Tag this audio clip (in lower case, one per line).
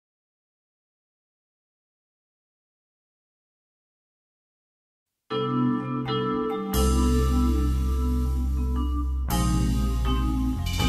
vibraphone
music